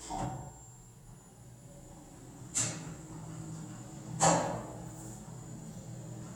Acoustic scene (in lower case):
elevator